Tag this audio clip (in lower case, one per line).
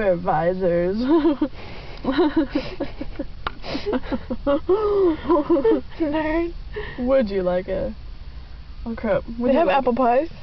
speech